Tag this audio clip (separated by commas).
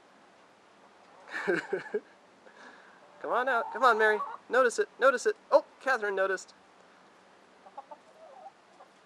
Speech, Chicken